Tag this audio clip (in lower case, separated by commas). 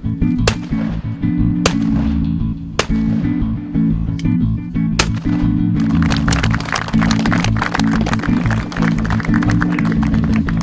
gunfire